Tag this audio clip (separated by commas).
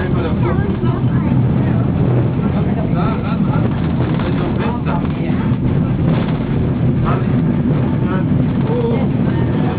Vehicle, Speech